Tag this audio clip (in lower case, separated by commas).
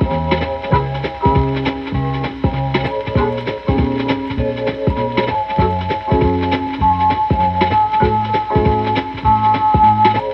music, blues, pop music